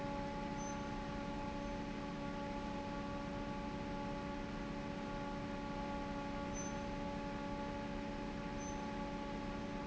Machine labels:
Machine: fan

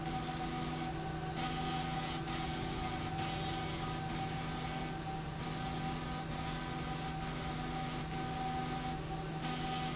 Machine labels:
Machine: slide rail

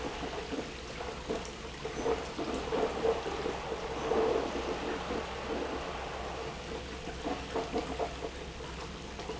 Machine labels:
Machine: pump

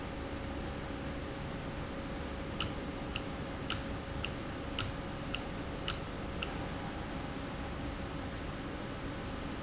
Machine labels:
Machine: valve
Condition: normal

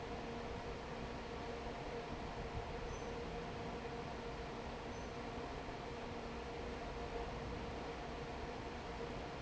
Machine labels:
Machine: fan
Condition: normal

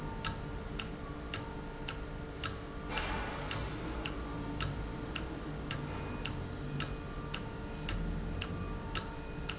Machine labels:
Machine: valve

